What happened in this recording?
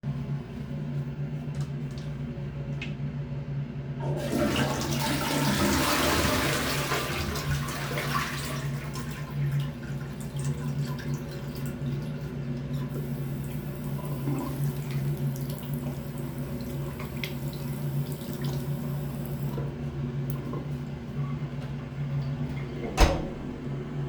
The air conditioner in the toilet is on. I flushed the toilet and washed my hands in the meantime, finally I opened my bathroom door.